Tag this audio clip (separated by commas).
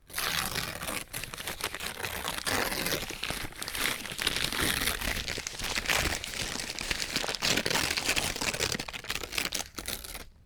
Tearing